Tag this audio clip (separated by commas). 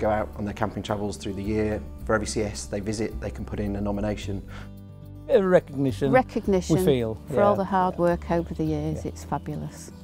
Speech, Music